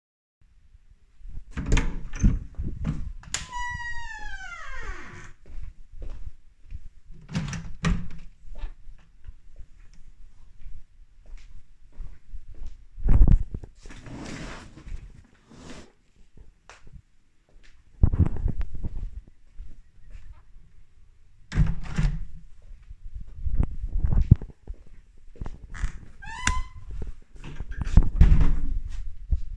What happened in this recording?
I opened my bedroom door, turned on the light and walked to the window. I opened the window, then I moved my desk chair and closed the window again. Then i left the room, turning off the light and closing the door